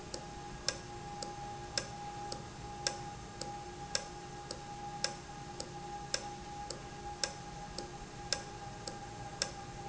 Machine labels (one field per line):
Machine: valve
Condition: normal